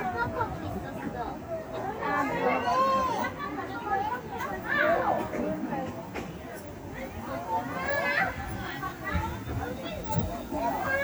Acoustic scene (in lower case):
residential area